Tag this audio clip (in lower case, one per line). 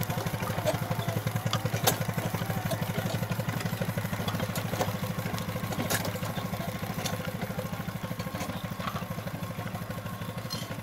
engine
vehicle
idling